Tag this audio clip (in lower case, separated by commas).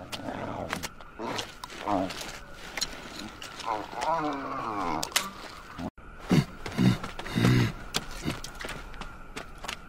wild animals, outside, rural or natural